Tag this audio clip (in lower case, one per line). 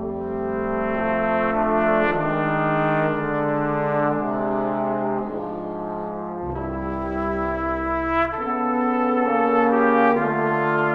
music
playing french horn
brass instrument
trombone
french horn